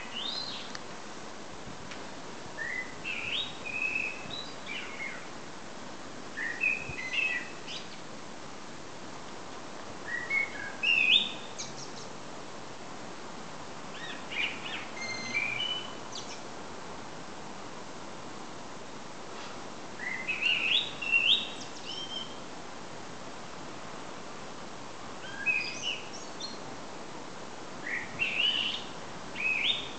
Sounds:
wild animals, bird, bird call, animal

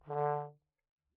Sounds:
music, brass instrument, musical instrument

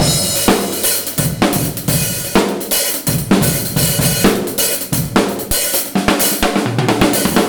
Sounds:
music, percussion, drum kit, musical instrument, drum

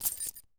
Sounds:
keys jangling, home sounds

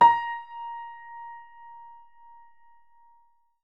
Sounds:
keyboard (musical), piano, music, musical instrument

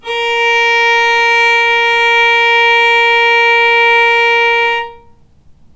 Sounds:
musical instrument, bowed string instrument, music

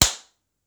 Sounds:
clapping, hands

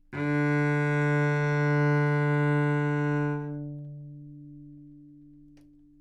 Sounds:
music, bowed string instrument, musical instrument

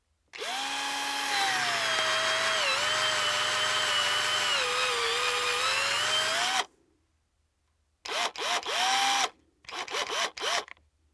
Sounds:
drill, tools, power tool

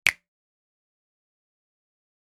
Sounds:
hands, finger snapping

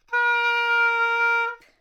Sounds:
music, woodwind instrument, musical instrument

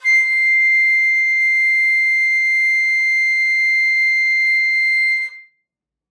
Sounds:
woodwind instrument, musical instrument, music

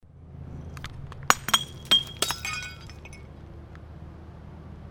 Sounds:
glass, crushing, shatter

